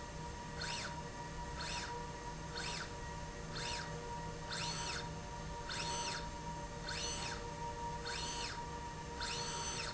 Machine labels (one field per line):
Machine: slide rail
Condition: normal